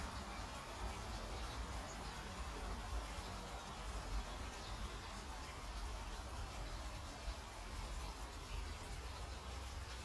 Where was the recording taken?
in a park